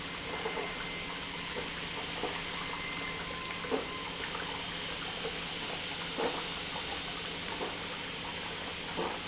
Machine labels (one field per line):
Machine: pump